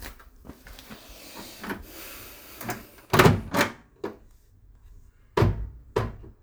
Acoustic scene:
kitchen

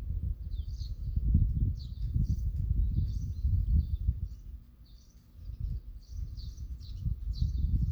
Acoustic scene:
park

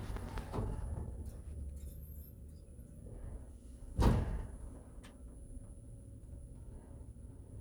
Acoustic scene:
elevator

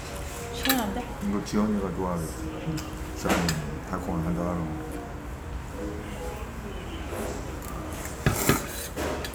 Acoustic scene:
restaurant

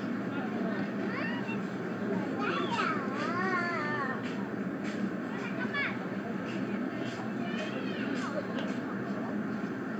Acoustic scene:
residential area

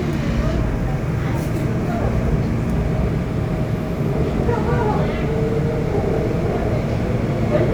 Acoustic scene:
subway train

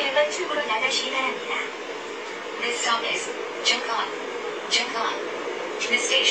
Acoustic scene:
subway train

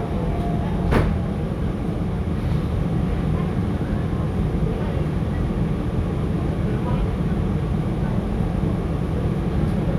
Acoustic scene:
subway train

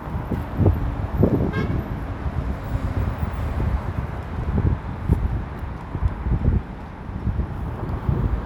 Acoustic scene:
street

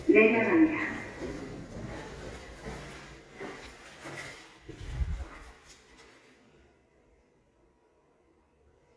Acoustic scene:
elevator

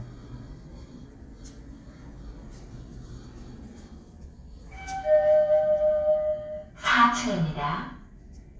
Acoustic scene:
elevator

